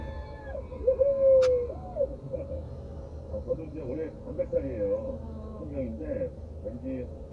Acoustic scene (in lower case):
car